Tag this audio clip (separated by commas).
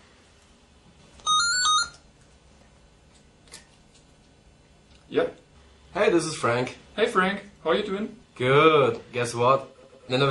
inside a small room, Speech